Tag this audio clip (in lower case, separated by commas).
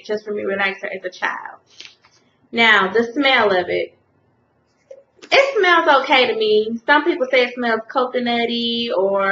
inside a small room, speech